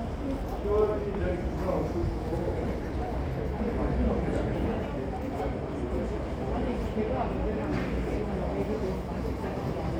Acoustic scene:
subway station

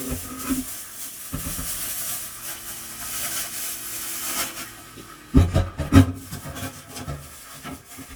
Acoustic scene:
kitchen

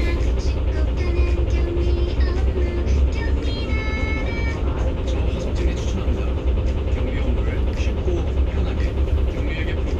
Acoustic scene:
bus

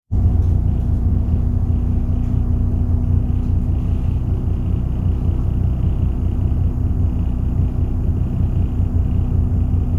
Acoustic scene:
bus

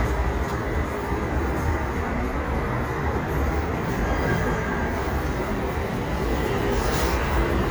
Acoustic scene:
street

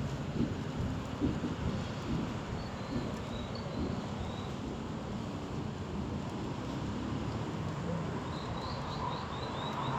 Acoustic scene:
street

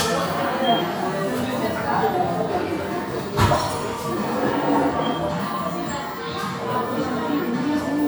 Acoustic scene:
crowded indoor space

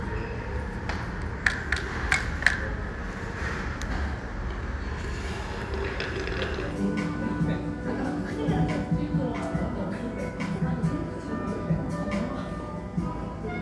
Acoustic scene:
cafe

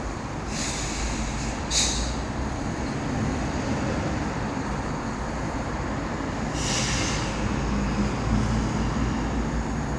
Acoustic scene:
residential area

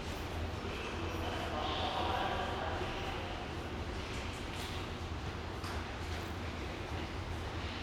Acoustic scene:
subway station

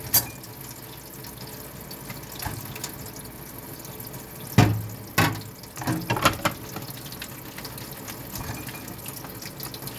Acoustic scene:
kitchen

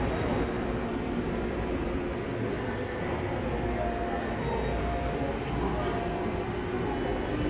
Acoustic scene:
subway station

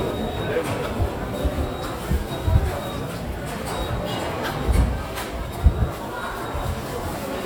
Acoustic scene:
subway station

